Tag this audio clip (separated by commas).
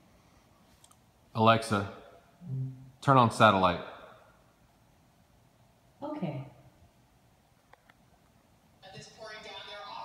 Speech